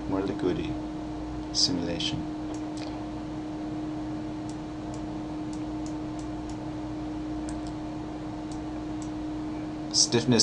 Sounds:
Speech

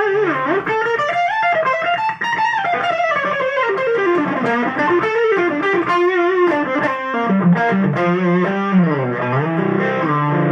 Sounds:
Musical instrument, Effects unit, Plucked string instrument, Music, Guitar

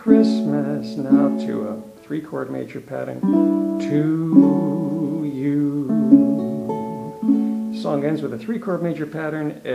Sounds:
Speech, Plucked string instrument, Ukulele, Musical instrument, Music, inside a small room

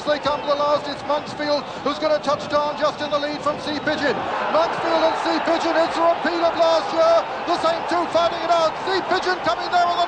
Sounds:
Speech

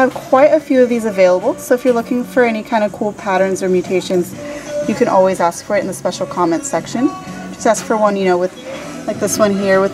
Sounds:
Music, Speech

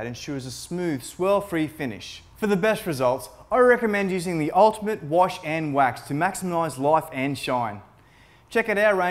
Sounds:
Speech

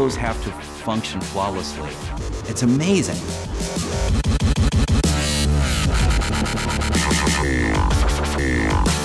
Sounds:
Music, Speech, Dubstep

